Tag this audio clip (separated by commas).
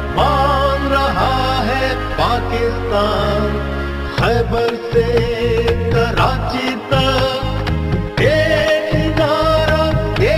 Music